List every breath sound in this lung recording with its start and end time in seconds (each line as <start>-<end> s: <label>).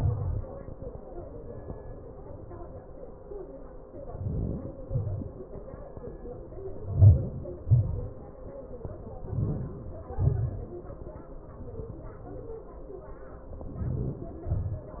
0.00-0.53 s: inhalation
0.51-0.95 s: exhalation
3.89-4.78 s: inhalation
4.78-5.45 s: exhalation
6.66-7.51 s: inhalation
7.51-8.22 s: exhalation
9.11-10.08 s: inhalation
10.21-10.99 s: exhalation
13.45-14.37 s: inhalation
14.36-15.00 s: exhalation